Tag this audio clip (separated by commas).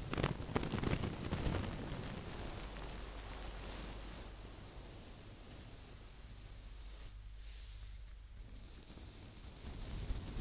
inside a small room